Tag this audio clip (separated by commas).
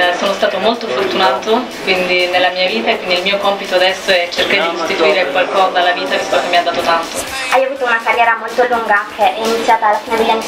Music, Speech